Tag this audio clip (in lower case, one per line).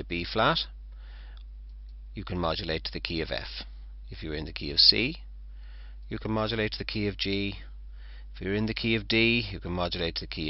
speech